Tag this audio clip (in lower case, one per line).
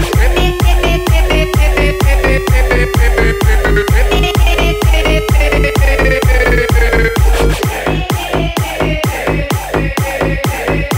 electronic dance music
music